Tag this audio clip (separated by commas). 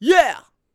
Human voice